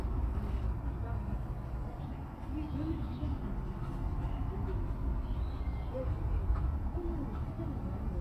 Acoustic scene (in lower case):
park